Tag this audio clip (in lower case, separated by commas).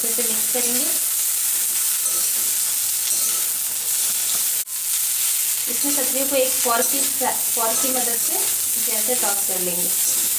people eating noodle